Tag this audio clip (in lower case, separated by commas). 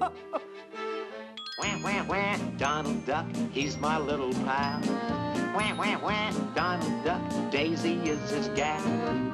music